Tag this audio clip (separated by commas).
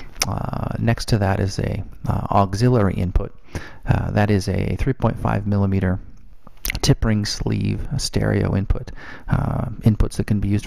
Speech